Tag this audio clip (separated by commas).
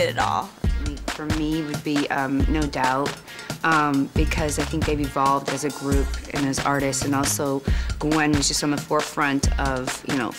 Music, Speech, Exciting music